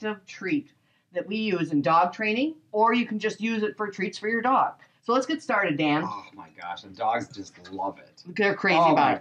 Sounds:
speech

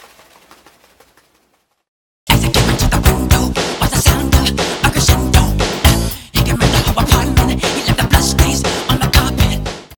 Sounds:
music

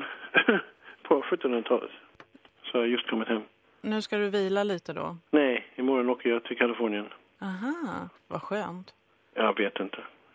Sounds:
speech
radio

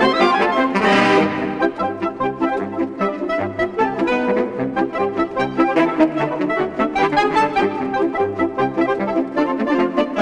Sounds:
music

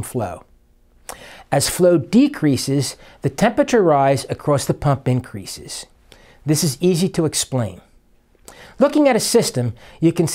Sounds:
speech

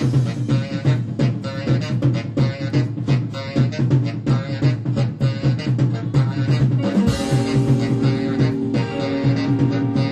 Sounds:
music

